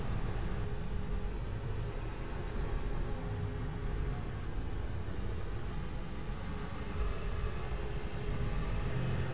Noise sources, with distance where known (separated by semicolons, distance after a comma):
engine of unclear size